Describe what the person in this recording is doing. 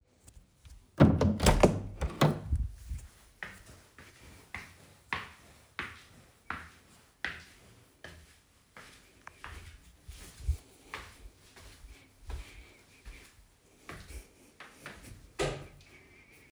I opened the door and walked into the room. While walking I turned on the light switch.